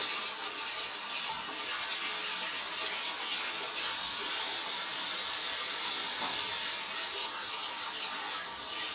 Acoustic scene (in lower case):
restroom